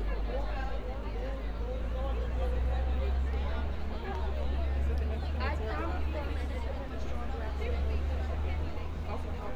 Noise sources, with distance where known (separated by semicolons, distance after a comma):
person or small group talking